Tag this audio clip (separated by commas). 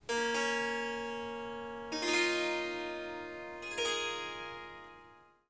Harp, Music, Musical instrument